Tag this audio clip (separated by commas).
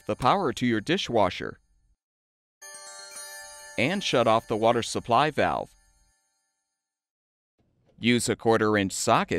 Speech